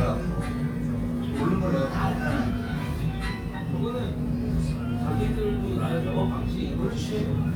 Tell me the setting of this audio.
crowded indoor space